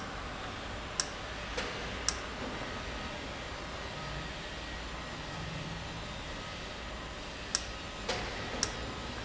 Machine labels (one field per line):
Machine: valve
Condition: normal